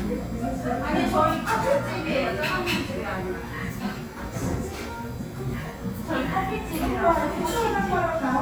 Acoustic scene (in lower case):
cafe